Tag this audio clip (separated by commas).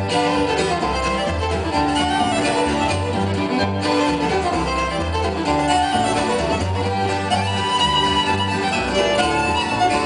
Musical instrument, Violin, Music